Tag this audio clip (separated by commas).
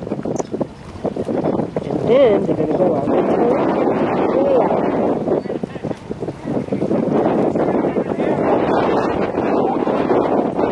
Speech